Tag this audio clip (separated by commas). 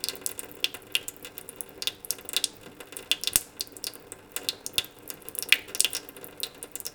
dribble, Pour, Sink (filling or washing), Liquid, home sounds, Water tap